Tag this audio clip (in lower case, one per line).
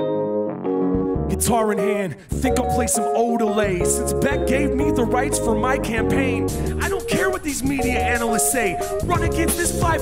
jazz
independent music
folk music
music